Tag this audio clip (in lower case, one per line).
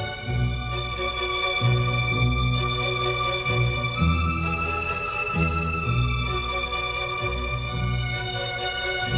music